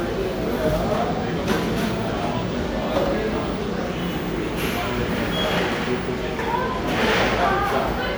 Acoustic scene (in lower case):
cafe